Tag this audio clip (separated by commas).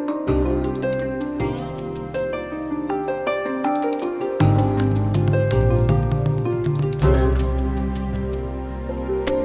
Music